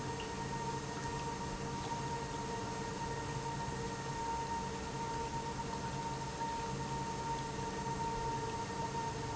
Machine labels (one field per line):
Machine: pump